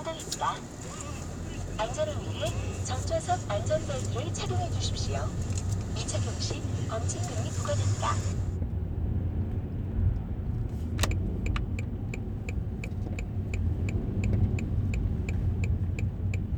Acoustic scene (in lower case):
car